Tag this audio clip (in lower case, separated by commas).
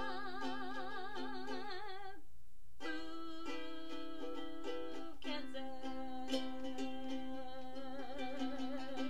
musical instrument, speech, music, plucked string instrument, ukulele